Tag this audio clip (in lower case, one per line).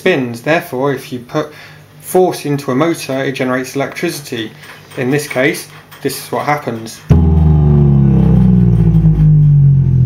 speech